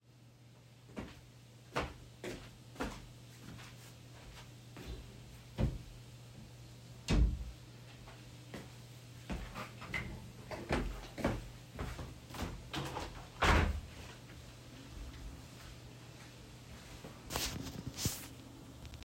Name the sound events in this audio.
footsteps, wardrobe or drawer, window